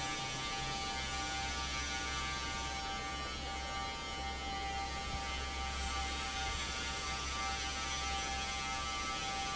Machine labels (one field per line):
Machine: fan